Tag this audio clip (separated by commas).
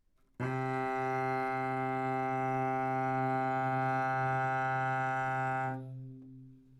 Music, Musical instrument, Bowed string instrument